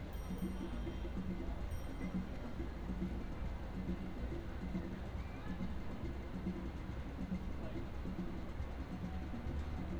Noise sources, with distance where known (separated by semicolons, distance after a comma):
music from a fixed source, far; person or small group talking, far